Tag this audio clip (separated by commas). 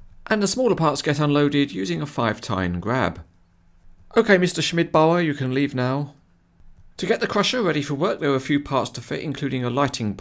Speech